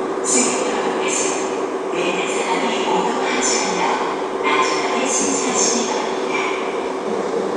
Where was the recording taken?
in a subway station